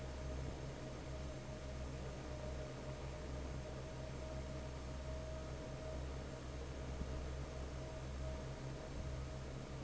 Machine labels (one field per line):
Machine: fan